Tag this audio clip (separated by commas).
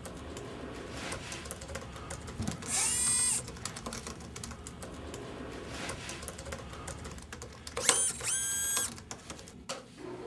inside a small room